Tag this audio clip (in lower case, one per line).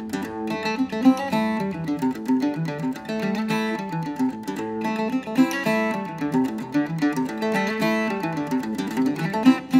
playing mandolin